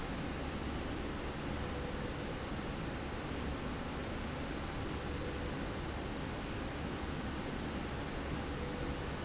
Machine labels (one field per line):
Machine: slide rail